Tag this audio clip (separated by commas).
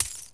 Coin (dropping), home sounds